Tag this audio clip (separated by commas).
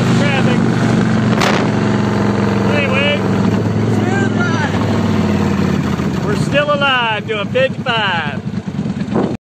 Speech